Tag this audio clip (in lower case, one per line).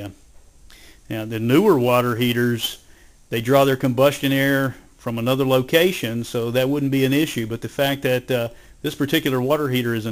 speech